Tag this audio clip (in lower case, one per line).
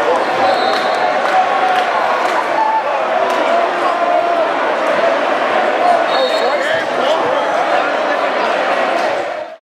speech